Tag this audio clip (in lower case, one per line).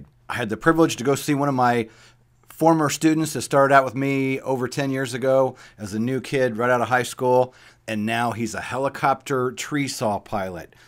speech